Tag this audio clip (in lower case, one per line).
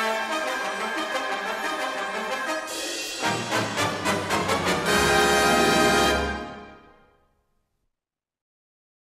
music